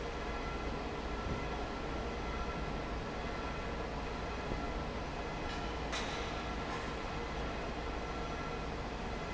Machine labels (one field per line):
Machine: fan